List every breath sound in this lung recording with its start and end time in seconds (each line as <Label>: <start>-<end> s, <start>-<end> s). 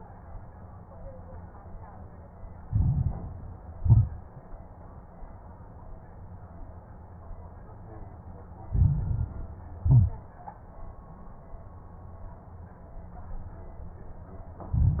Inhalation: 2.64-3.40 s, 8.66-9.42 s, 14.71-15.00 s
Exhalation: 3.78-4.19 s, 9.82-10.23 s
Crackles: 2.64-3.40 s, 3.78-4.19 s, 8.66-9.42 s, 9.82-10.23 s, 14.71-15.00 s